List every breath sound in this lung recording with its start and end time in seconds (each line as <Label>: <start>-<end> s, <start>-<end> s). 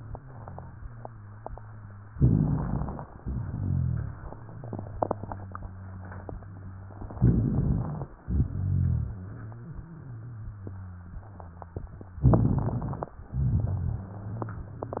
Inhalation: 2.06-3.10 s, 7.18-8.08 s, 12.22-13.12 s
Exhalation: 3.16-7.04 s, 8.22-12.10 s, 13.32-15.00 s
Rhonchi: 2.06-3.10 s, 3.16-7.04 s, 7.18-8.08 s, 8.22-12.10 s, 12.22-13.12 s, 13.32-15.00 s